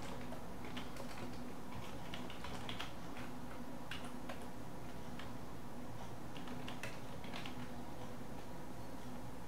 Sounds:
inside a small room

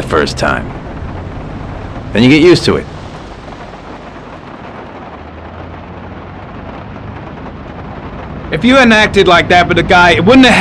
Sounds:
rain on surface, speech

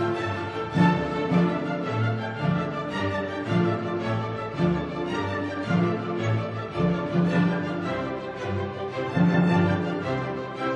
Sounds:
music

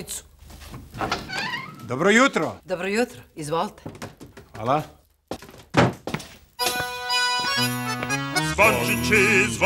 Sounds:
speech, music, christian music, christmas music

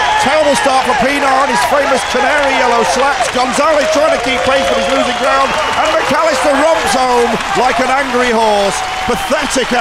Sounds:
speech

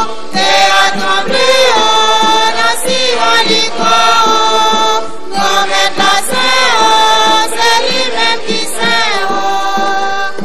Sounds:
music

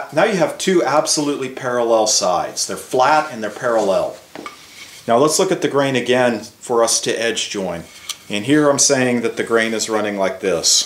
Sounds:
planing timber

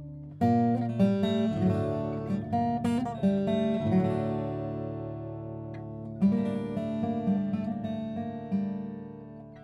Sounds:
music, acoustic guitar

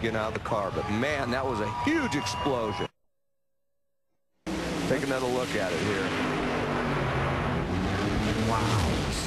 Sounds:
eruption, speech

